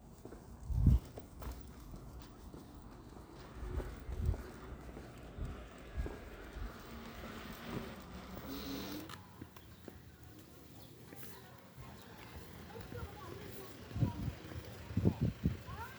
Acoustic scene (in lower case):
residential area